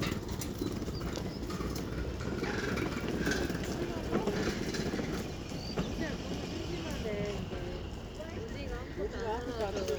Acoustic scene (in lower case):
residential area